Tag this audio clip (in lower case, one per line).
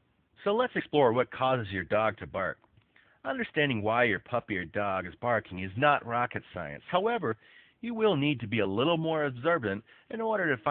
speech